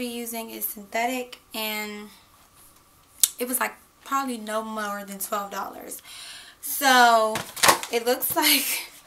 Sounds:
speech

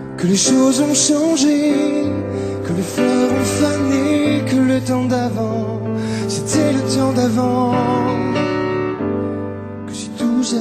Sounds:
music

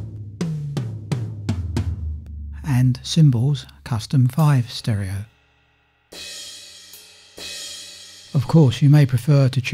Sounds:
sampler, speech, musical instrument, music

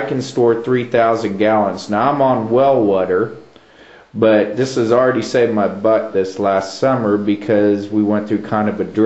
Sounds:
speech

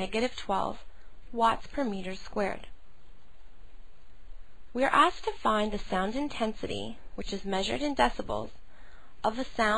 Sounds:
speech

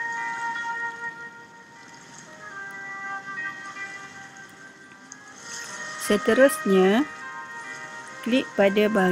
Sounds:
speech, music

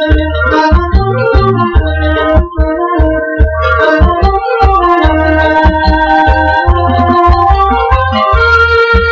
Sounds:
theme music, music, background music

